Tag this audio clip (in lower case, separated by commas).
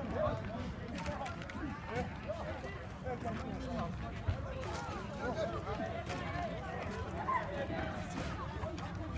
speech